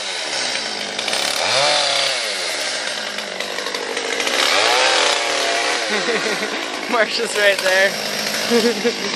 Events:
0.0s-9.1s: jackhammer
5.9s-6.6s: laughter
6.8s-7.9s: man speaking
8.5s-9.1s: laughter

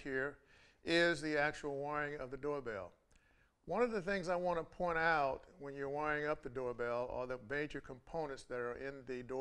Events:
0.0s-0.4s: man speaking
0.0s-9.4s: background noise
0.4s-0.8s: breathing
0.8s-2.9s: man speaking
3.1s-3.1s: tick
3.1s-3.5s: breathing
3.6s-9.4s: man speaking
4.7s-4.8s: tick
5.4s-5.4s: tick
6.4s-6.5s: tick

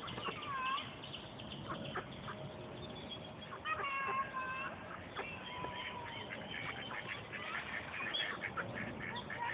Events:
0.0s-0.8s: duck
0.0s-9.5s: background noise
1.0s-1.6s: chirp
1.6s-1.7s: duck
1.7s-3.7s: chirp
1.9s-1.9s: duck
2.2s-2.3s: duck
3.5s-4.8s: duck
4.7s-5.1s: chirp
5.1s-5.2s: duck
5.4s-7.0s: chirp
5.9s-9.5s: duck
7.9s-8.2s: chirp
9.1s-9.2s: chirp

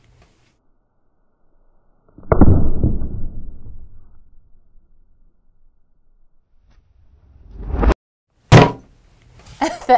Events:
7.1s-7.9s: sound effect
8.3s-9.9s: background noise
8.5s-8.8s: thunk
9.6s-9.9s: laughter

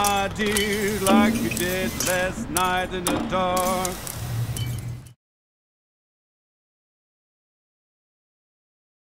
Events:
0.0s-0.7s: shatter
0.0s-3.9s: male singing
0.0s-5.1s: music
0.0s-5.1s: mechanisms
0.4s-2.3s: spray
1.0s-1.6s: shatter
1.9s-2.3s: shatter
2.5s-2.8s: shatter
3.0s-3.3s: shatter
3.5s-5.0s: spray
3.5s-4.1s: shatter
4.5s-5.1s: shatter

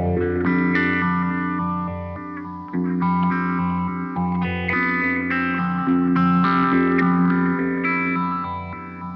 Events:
0.0s-9.1s: background noise
0.0s-9.1s: effects unit
0.0s-9.1s: music

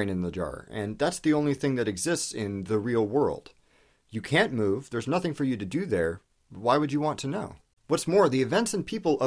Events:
0.0s-3.5s: male speech
0.0s-9.2s: background noise
3.7s-4.1s: breathing
4.2s-6.2s: male speech
6.5s-7.6s: male speech
7.9s-9.2s: male speech

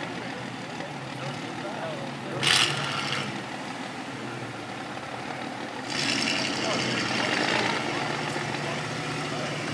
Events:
0.0s-9.7s: truck
0.0s-9.7s: wind
0.2s-2.1s: man speaking
2.4s-3.2s: revving
5.9s-7.9s: revving
6.6s-7.1s: man speaking
8.6s-8.9s: man speaking
9.3s-9.7s: man speaking

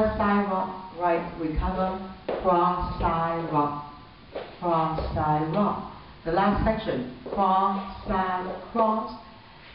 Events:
0.0s-0.6s: woman speaking
0.0s-9.7s: mechanisms
0.9s-2.0s: woman speaking
1.5s-1.7s: generic impact sounds
2.2s-2.4s: tap
2.3s-3.7s: woman speaking
2.8s-3.0s: generic impact sounds
4.3s-4.4s: tap
4.5s-5.8s: woman speaking
4.9s-5.1s: tap
5.4s-5.6s: tap
6.2s-7.0s: woman speaking
6.4s-6.6s: generic impact sounds
7.2s-7.3s: tap
7.3s-7.8s: woman speaking
7.8s-8.0s: generic impact sounds
8.0s-8.1s: tap
8.0s-8.4s: woman speaking
8.7s-8.9s: tap
8.7s-9.1s: woman speaking
9.4s-9.7s: breathing

